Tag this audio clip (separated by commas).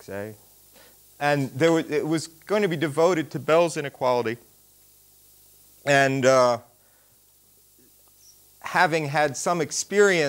Speech